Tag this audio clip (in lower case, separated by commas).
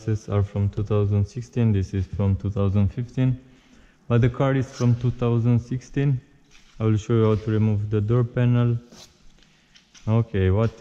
opening or closing car doors